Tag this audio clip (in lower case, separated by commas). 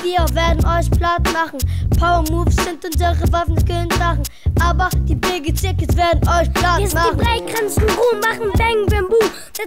music